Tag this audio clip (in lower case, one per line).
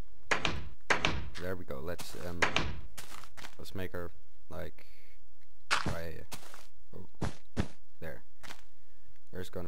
speech